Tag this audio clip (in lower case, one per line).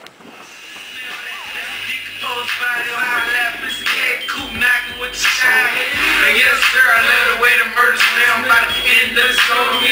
music